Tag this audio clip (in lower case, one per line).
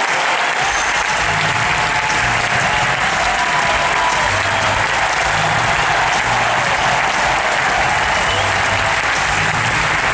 playing tennis